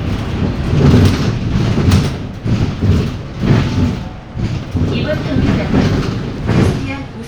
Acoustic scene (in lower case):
bus